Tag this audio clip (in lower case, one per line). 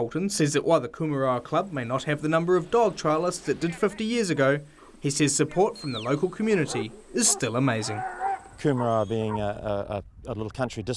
dog
animal
domestic animals
speech
bark